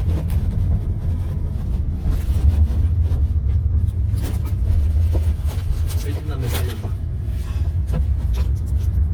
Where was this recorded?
in a car